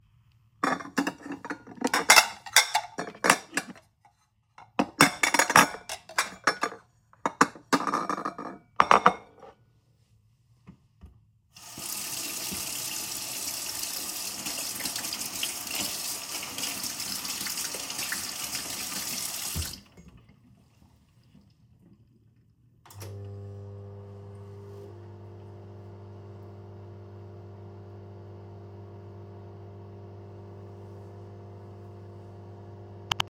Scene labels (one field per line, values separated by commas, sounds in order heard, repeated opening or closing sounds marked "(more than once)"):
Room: kitchen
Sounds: cutlery and dishes, running water, microwave